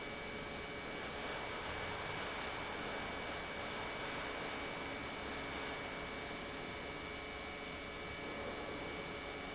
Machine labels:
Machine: pump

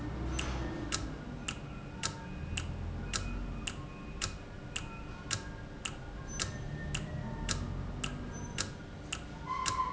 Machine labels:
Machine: valve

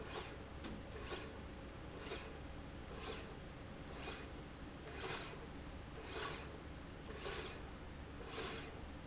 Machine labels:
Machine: slide rail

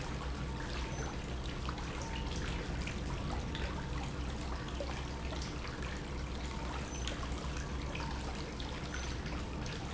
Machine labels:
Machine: pump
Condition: normal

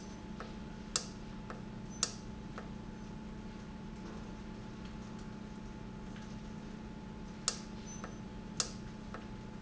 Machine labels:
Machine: valve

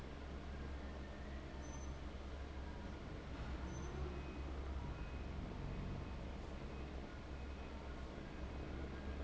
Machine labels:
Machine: fan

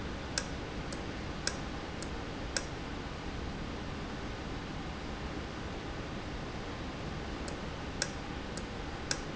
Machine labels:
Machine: valve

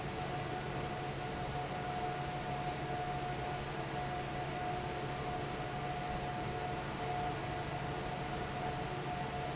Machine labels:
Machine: fan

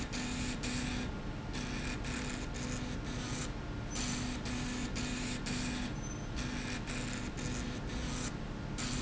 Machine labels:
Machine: slide rail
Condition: abnormal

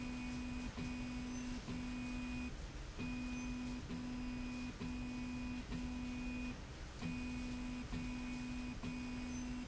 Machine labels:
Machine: slide rail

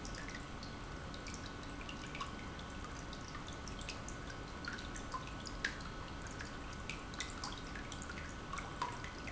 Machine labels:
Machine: pump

